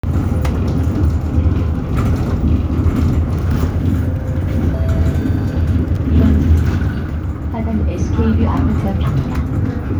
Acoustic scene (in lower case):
bus